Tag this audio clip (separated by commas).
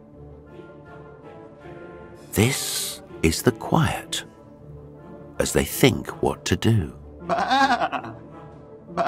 Speech, Music